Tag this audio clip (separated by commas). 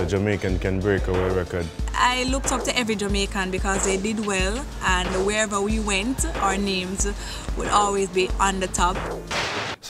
Speech, Music